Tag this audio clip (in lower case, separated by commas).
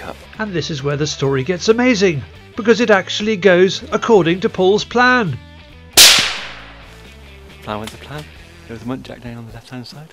speech, music, outside, rural or natural